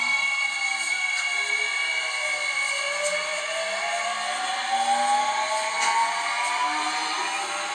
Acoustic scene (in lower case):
subway train